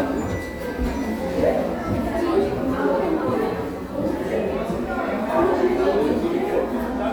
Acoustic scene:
crowded indoor space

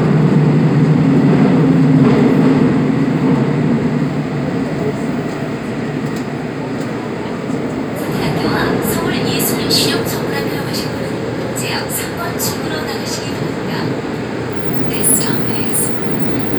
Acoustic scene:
subway train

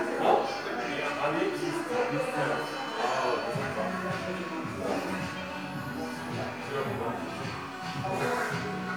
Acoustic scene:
crowded indoor space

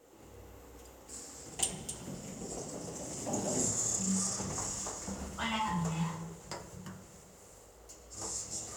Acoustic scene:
elevator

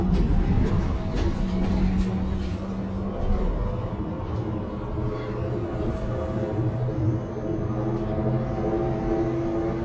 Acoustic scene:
bus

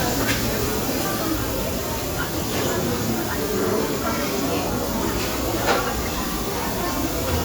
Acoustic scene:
restaurant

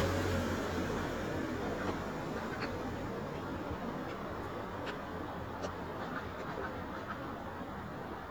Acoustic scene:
street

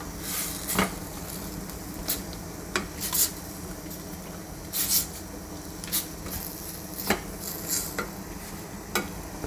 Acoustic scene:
kitchen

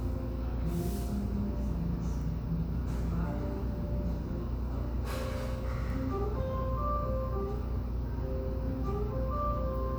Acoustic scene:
cafe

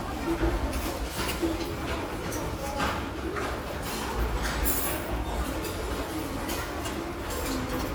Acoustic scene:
restaurant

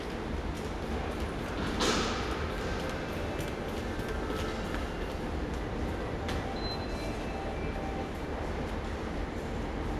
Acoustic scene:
subway station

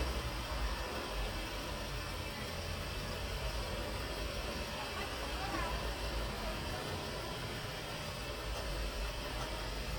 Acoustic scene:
residential area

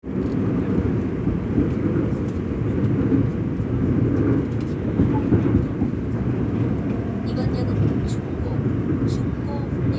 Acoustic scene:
subway train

